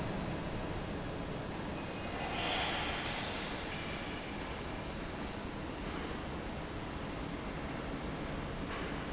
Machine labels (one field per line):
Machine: fan